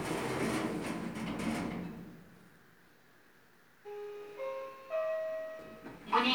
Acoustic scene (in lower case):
elevator